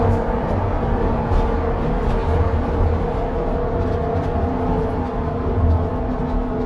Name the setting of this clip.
bus